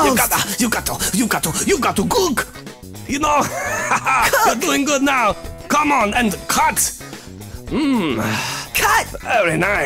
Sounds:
Music, Rapping

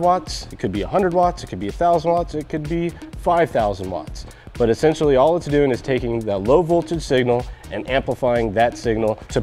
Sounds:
Music, Speech

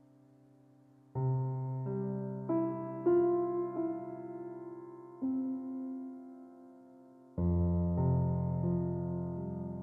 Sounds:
Music

